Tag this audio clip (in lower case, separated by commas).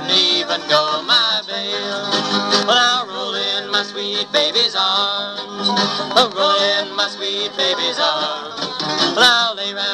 bluegrass, music